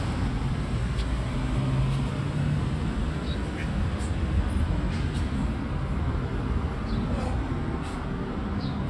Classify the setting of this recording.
residential area